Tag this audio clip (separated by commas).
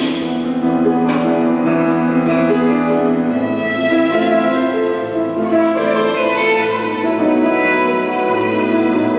Violin, Music, Musical instrument